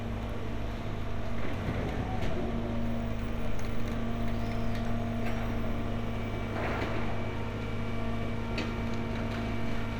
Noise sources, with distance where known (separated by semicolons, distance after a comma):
large-sounding engine, near